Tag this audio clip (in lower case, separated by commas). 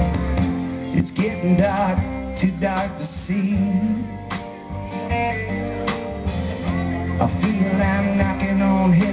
music